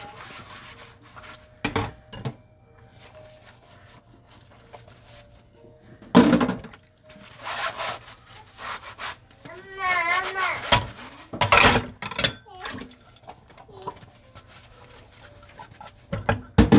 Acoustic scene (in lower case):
kitchen